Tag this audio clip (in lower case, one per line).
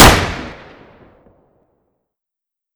gunfire
explosion